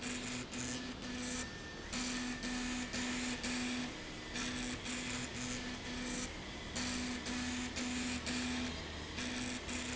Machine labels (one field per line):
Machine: slide rail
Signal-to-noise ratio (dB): 0 dB